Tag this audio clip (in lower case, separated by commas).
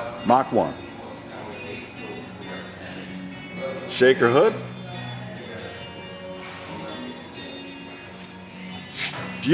music, speech